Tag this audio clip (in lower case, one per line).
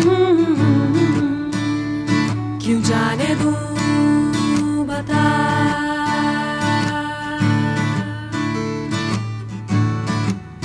music